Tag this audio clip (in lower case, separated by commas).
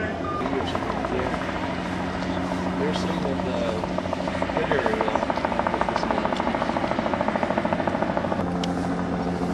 helicopter, vehicle, speech, motor vehicle (road), truck